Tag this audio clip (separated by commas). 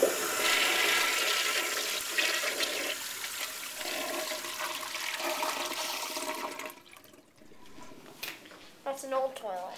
Toilet flush, Water